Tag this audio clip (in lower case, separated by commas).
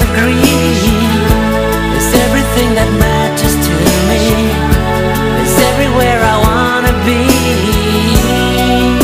musical instrument, music, pop music